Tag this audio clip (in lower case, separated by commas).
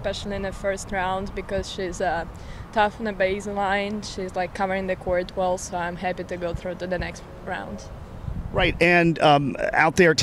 speech